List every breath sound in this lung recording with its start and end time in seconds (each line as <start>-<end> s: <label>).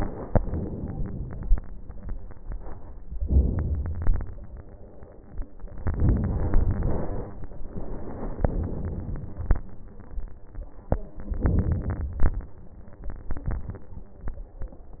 0.00-1.55 s: inhalation
1.55-2.06 s: exhalation
3.17-4.21 s: inhalation
4.20-4.60 s: exhalation
5.82-7.37 s: inhalation
7.36-7.76 s: exhalation
8.42-9.54 s: inhalation
9.57-10.16 s: exhalation
11.37-12.46 s: inhalation
12.44-13.04 s: exhalation